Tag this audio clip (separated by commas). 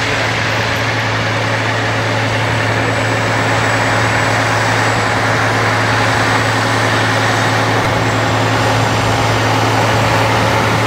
Truck, Vehicle, outside, rural or natural